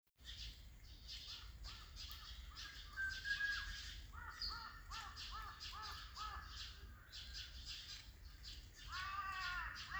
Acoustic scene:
park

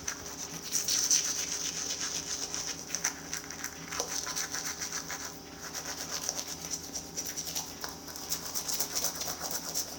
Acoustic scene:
restroom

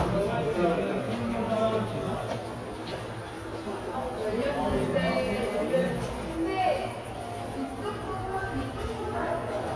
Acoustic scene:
subway station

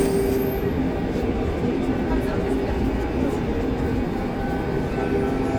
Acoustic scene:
subway train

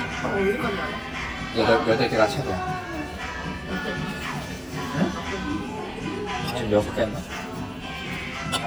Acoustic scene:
restaurant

